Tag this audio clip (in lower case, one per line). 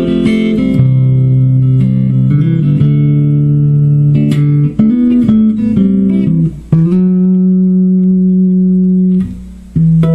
plucked string instrument
music
musical instrument
inside a small room
guitar